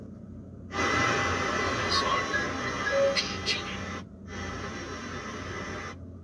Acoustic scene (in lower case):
car